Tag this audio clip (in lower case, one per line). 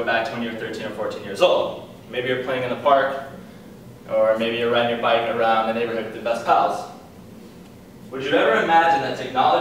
male speech
speech